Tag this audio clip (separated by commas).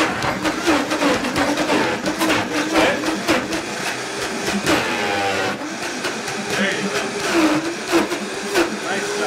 Blender